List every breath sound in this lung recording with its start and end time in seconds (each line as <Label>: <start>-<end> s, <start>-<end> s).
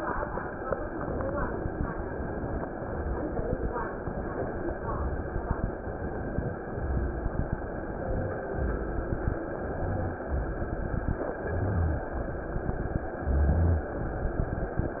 Inhalation: 4.02-4.71 s, 6.00-6.60 s, 7.87-8.48 s, 9.51-10.19 s, 11.37-12.05 s, 13.19-13.97 s
Exhalation: 2.73-3.63 s, 4.78-5.67 s, 6.68-7.57 s, 8.56-9.45 s, 10.30-11.20 s, 12.22-13.04 s, 13.96-14.78 s
Rhonchi: 11.37-12.05 s, 13.19-13.97 s